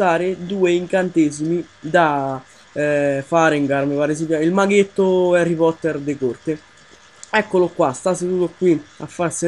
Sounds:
Speech

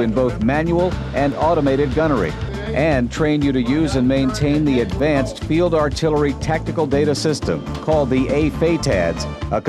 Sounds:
Speech, Music

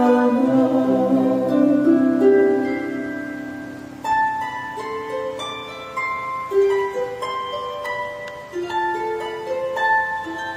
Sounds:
Sad music, Music

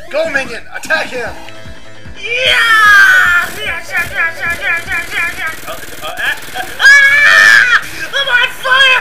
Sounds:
Speech, outside, rural or natural, Music

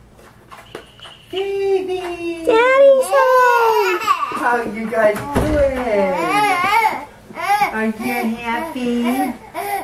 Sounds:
baby babbling

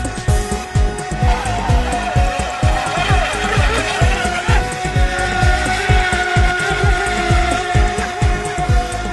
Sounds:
speedboat, Music

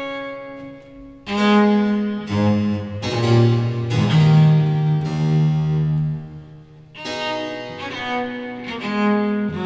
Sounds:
playing harpsichord

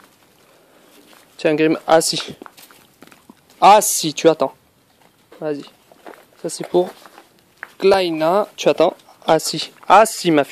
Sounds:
Speech

